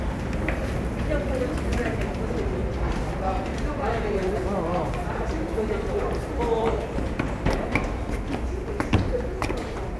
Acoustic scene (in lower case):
subway station